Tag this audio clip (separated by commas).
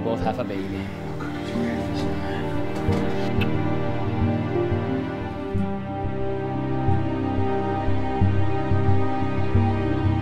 Speech, Music